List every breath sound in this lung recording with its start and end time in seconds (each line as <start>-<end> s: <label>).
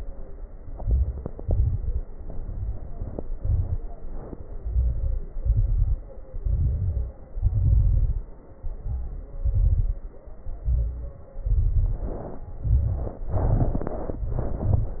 0.61-1.40 s: inhalation
0.61-1.40 s: crackles
1.42-1.99 s: exhalation
1.42-1.99 s: crackles
2.11-3.32 s: inhalation
2.11-3.32 s: crackles
3.36-4.25 s: exhalation
3.36-4.25 s: crackles
4.48-5.24 s: inhalation
4.48-5.24 s: crackles
5.32-6.08 s: exhalation
5.32-6.08 s: crackles
6.37-7.16 s: inhalation
6.37-7.16 s: crackles
7.30-8.30 s: exhalation
7.30-8.30 s: crackles
8.57-9.33 s: inhalation
8.57-9.33 s: crackles
9.40-10.16 s: exhalation
9.40-10.16 s: crackles
10.58-11.34 s: inhalation
10.58-11.34 s: crackles
11.50-12.39 s: exhalation
11.50-12.39 s: crackles
12.58-13.24 s: inhalation
12.58-13.24 s: crackles
13.26-14.27 s: exhalation
13.26-14.27 s: crackles
14.35-15.00 s: inhalation
14.35-15.00 s: crackles